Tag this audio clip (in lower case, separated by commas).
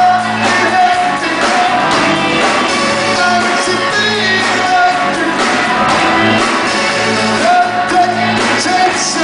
music